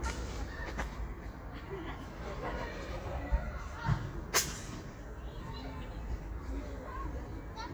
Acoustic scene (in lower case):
park